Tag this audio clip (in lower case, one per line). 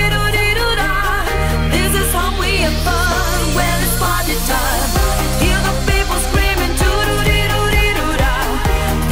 music